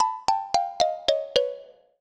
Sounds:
percussion, musical instrument, music, marimba, mallet percussion

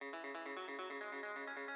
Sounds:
plucked string instrument, musical instrument, guitar, music

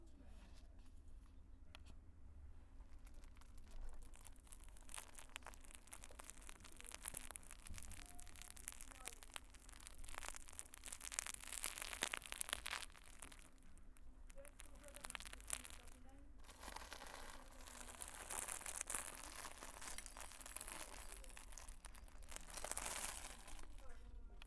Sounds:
crinkling

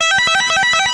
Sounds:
musical instrument, music, electric guitar, guitar, plucked string instrument

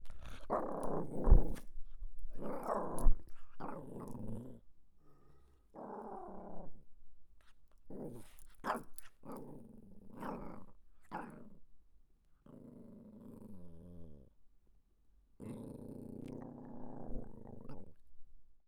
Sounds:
growling, animal

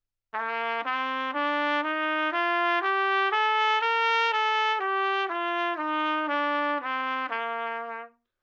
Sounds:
musical instrument, brass instrument, music, trumpet

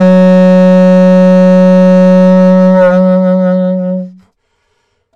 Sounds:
woodwind instrument, music, musical instrument

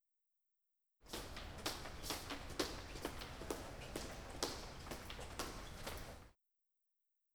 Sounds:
walk

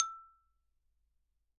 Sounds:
xylophone, music, percussion, mallet percussion, musical instrument

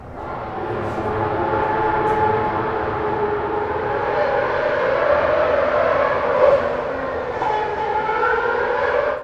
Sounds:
motor vehicle (road), auto racing, car, vehicle

